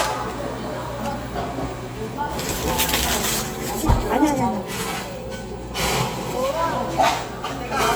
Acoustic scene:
cafe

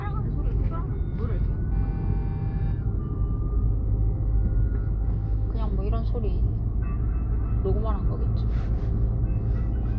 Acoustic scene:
car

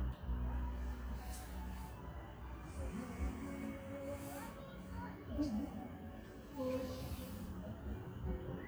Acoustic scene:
park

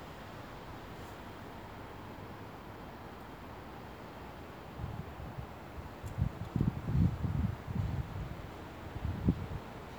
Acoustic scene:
residential area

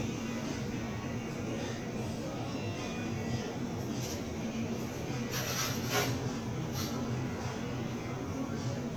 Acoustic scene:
crowded indoor space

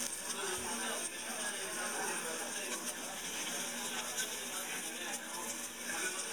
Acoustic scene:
restaurant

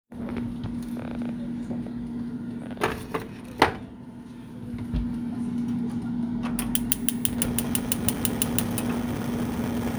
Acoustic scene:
kitchen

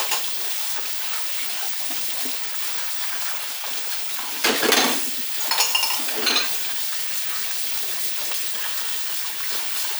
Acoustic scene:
kitchen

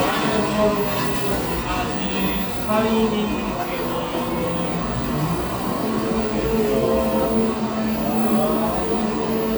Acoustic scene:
cafe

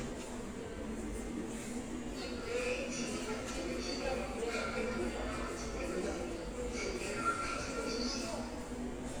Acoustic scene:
subway station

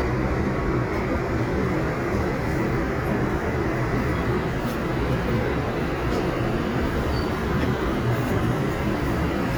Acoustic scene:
subway train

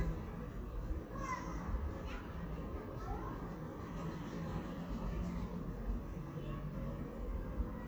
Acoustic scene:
residential area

